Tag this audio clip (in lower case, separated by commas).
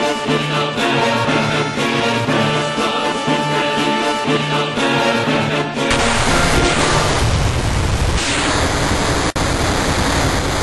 music